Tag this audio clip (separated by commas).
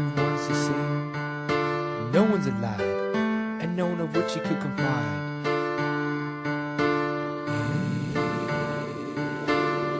Music, Speech